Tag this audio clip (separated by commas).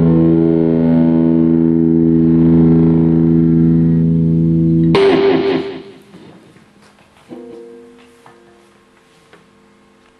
Music